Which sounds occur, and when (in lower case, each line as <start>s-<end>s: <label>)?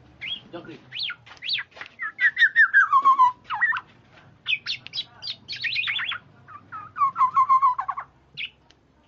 0.0s-9.0s: mechanisms
0.2s-0.4s: bird call
0.5s-0.8s: man speaking
0.9s-1.1s: bird call
1.2s-1.4s: generic impact sounds
1.4s-1.7s: bird call
1.7s-1.9s: generic impact sounds
2.0s-3.3s: bird call
3.0s-3.1s: generic impact sounds
3.5s-3.8s: bird call
3.7s-3.8s: tick
4.1s-4.3s: generic impact sounds
4.4s-5.0s: bird call
4.7s-5.3s: man speaking
4.8s-4.9s: tick
5.2s-5.3s: bird call
5.2s-5.4s: tick
5.5s-6.2s: bird call
6.2s-6.5s: man speaking
6.4s-6.6s: bird call
6.7s-8.0s: bird call
8.3s-8.4s: tap
8.3s-8.6s: bird call
8.6s-8.7s: tick
8.9s-9.0s: generic impact sounds